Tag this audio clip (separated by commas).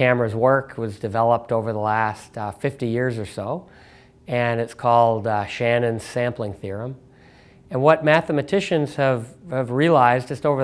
Speech